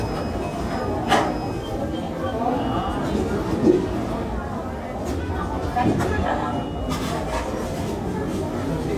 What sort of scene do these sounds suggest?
crowded indoor space